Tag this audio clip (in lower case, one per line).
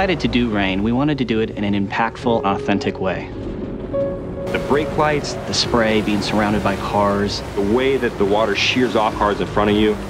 music
speech